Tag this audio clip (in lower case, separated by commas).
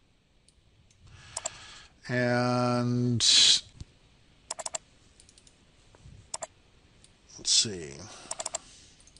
speech